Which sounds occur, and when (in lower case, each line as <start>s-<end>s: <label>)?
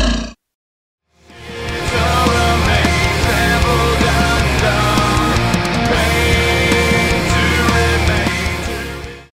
0.0s-0.5s: animal
1.1s-9.3s: music
1.3s-9.3s: male singing